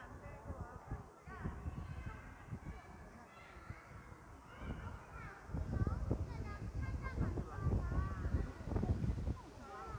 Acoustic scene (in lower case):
park